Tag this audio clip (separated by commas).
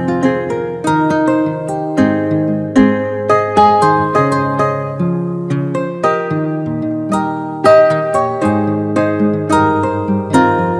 Acoustic guitar, Music, Musical instrument, Guitar, Plucked string instrument